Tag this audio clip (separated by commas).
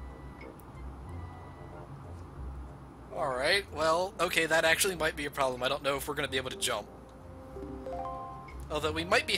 Speech